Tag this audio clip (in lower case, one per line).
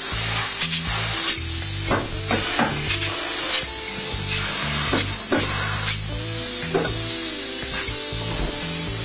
music
spray